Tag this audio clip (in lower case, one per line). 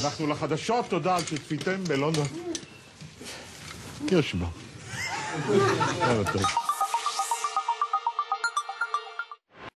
speech
music